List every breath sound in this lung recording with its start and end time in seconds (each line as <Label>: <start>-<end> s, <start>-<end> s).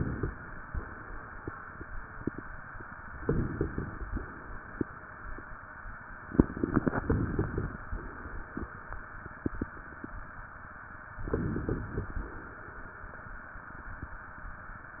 Inhalation: 3.19-4.14 s, 6.96-7.91 s, 11.20-12.14 s
Crackles: 3.19-4.14 s, 6.96-7.91 s, 11.20-12.14 s